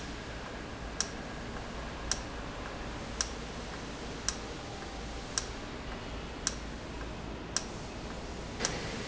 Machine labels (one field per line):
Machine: valve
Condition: normal